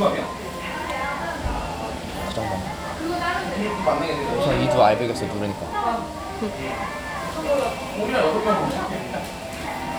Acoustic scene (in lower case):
restaurant